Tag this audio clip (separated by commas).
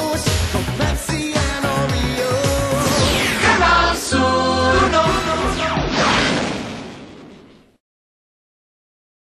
Music, Jingle (music)